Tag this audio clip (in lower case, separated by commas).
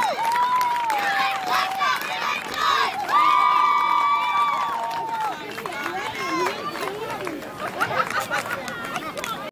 speech